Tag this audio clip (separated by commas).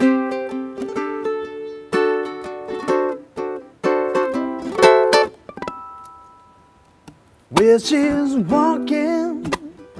playing ukulele